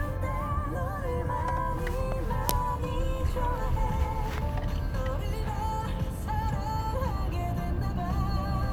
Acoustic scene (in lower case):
car